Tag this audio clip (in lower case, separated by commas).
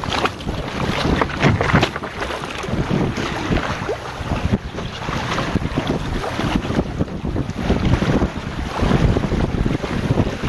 wind noise (microphone)